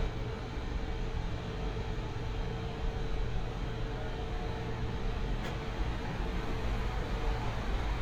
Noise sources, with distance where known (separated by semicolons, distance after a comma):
large-sounding engine, far